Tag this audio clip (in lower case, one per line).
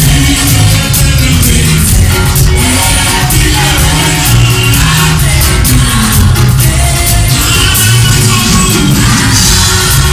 music
harmonic